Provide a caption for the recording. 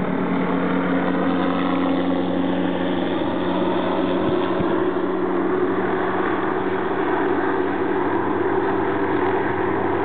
An engine roars in the distance